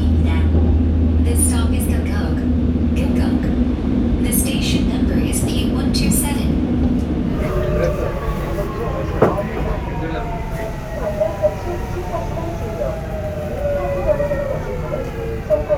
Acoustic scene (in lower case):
subway train